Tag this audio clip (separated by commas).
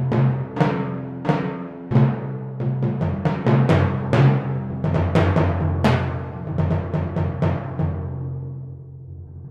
playing timpani